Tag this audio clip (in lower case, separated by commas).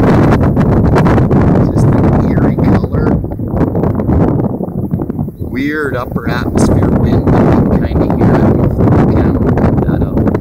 tornado roaring